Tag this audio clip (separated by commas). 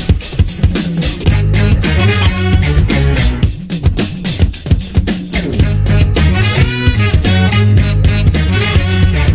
Music